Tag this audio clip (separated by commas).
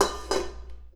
home sounds, dishes, pots and pans